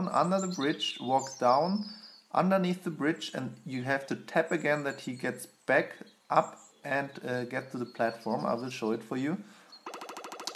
Birds are chirping and a man is talking over them